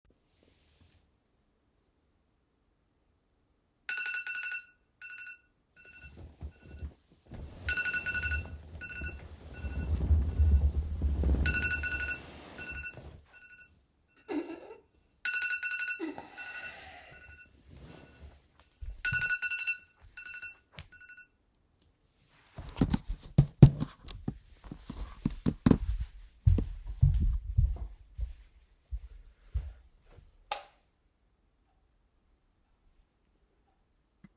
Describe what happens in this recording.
My alarm started ringing. I woke up, stretched and stood up. Then I turned off the alarm, picked up my phone and tablet and went to turn on the lights